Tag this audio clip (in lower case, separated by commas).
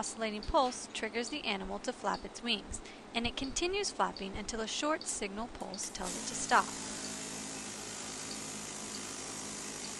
fly